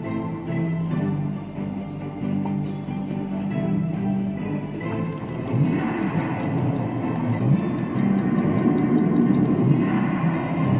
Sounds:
Video game music, Music

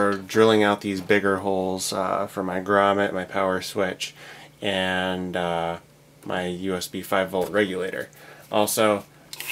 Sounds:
Drill

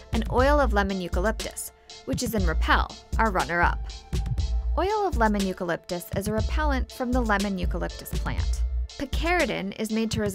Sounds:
Speech, Music

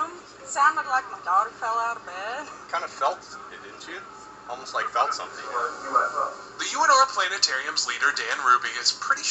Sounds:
Speech

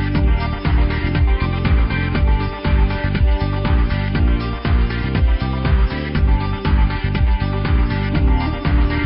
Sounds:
Music

